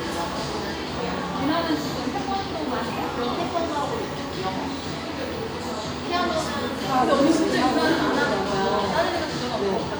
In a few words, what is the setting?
cafe